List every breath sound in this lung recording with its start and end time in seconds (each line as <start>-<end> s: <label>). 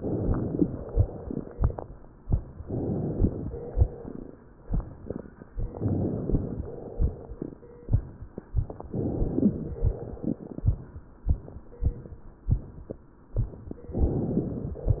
0.00-0.76 s: inhalation
0.87-1.75 s: exhalation
2.60-3.44 s: inhalation
3.53-4.40 s: exhalation
5.77-6.60 s: inhalation
6.66-7.53 s: exhalation
8.92-9.75 s: inhalation
9.83-10.70 s: exhalation
13.98-14.82 s: inhalation